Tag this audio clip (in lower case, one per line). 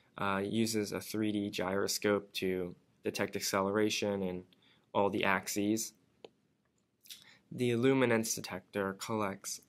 speech
inside a small room